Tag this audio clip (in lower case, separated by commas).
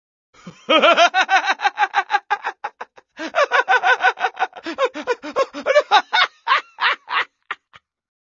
laughter